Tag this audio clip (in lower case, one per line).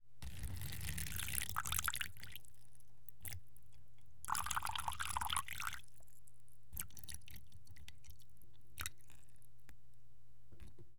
liquid